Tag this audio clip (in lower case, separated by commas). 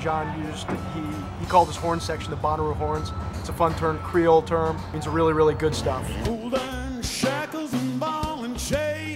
speech, jazz, music